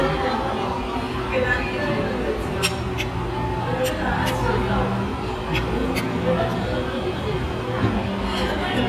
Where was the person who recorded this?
in a restaurant